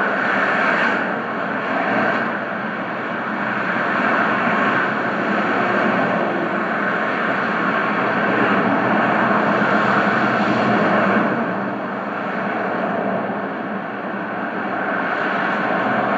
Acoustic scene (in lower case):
street